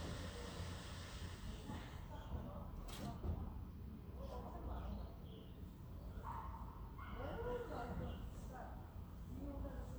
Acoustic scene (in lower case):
residential area